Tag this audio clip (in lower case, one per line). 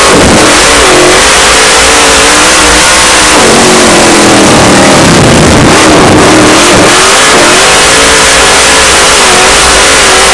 car
vehicle